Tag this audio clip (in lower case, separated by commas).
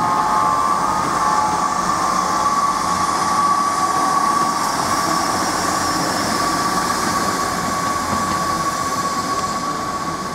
train, rail transport, railroad car, clickety-clack